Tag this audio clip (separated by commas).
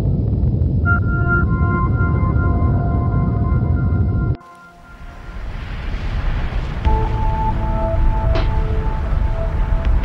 volcano explosion